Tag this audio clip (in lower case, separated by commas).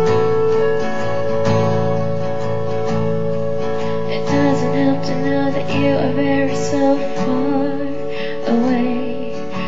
musical instrument, music, plucked string instrument, guitar